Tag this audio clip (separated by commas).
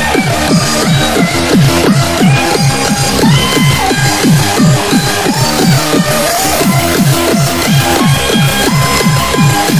Music